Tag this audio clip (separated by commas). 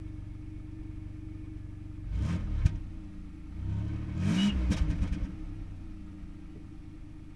Engine, Accelerating